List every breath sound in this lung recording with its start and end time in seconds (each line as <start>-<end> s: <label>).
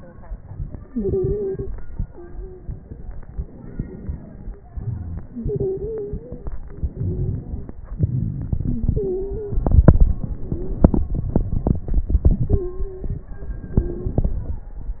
0.85-1.70 s: stridor
2.08-2.83 s: stridor
3.34-4.65 s: inhalation
3.34-4.65 s: crackles
4.68-6.62 s: exhalation
4.71-5.23 s: wheeze
5.36-6.44 s: stridor
6.64-7.88 s: inhalation
8.64-9.61 s: stridor
10.44-10.79 s: stridor
12.51-13.33 s: stridor
13.43-13.60 s: stridor
13.77-14.29 s: stridor